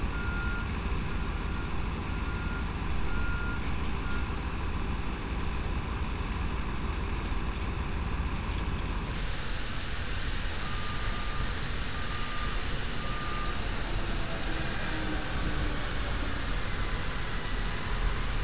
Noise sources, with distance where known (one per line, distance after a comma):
large-sounding engine, near
reverse beeper, far